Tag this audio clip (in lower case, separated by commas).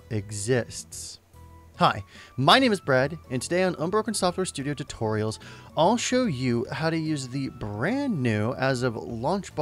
music, speech